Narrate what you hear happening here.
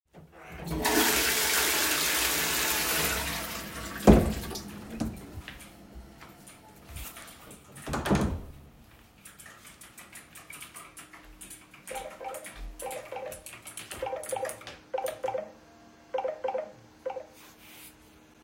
I flushed the toilet and walked through a small hallway. While I went back to the office, my colleges phone phone rang next to him while he was typing. After a small time he turned down the call.